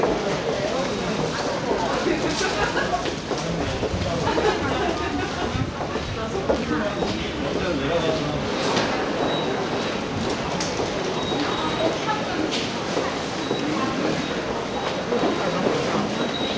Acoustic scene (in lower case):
subway station